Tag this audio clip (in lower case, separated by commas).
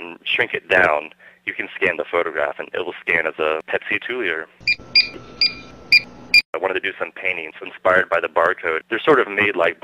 speech